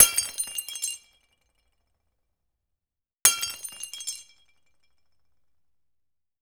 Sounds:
Shatter, Glass

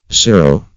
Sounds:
man speaking, Speech, Human voice

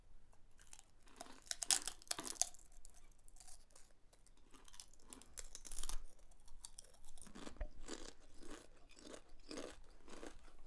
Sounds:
Chewing

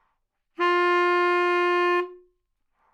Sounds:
Musical instrument, Music, Wind instrument

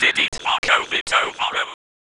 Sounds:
Human voice, Whispering

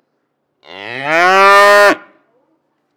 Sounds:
Animal, livestock

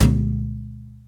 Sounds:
Thump

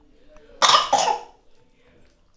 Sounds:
Respiratory sounds, Cough

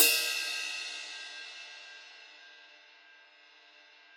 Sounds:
Percussion, Crash cymbal, Musical instrument, Cymbal, Music

